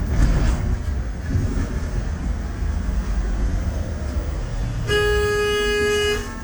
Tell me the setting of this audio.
bus